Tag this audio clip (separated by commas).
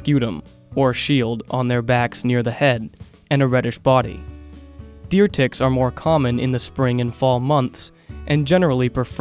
Speech, Music